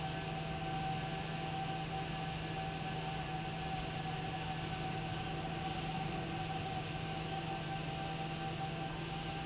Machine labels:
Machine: fan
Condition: abnormal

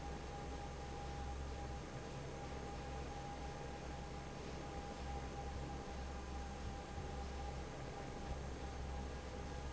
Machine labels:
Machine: fan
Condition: normal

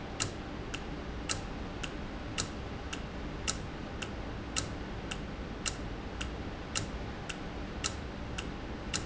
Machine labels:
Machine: valve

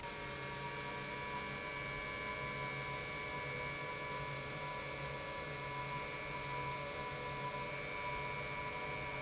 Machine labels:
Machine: pump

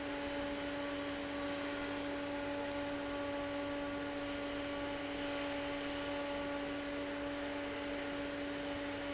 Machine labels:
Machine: fan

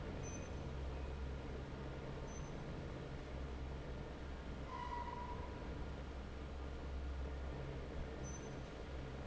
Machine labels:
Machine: fan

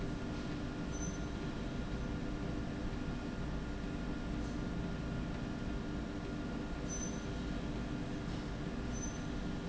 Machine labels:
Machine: slide rail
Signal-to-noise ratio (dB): -6 dB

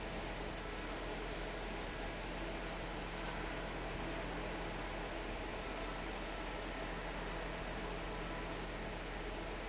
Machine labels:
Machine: fan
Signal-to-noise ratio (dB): 0 dB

